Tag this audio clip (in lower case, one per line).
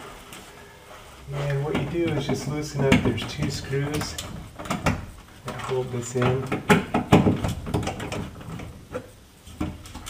speech